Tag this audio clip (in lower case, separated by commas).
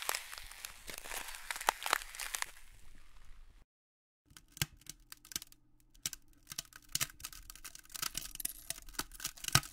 ice cracking